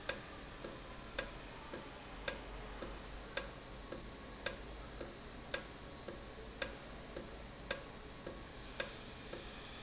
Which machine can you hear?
valve